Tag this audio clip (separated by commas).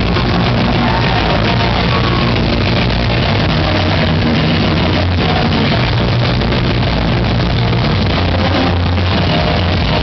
Music